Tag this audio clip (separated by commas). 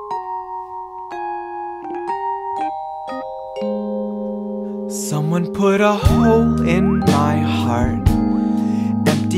Music